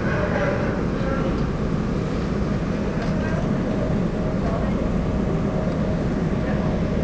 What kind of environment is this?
subway train